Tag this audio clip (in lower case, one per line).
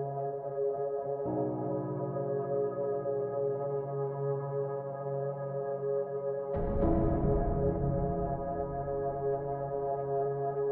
music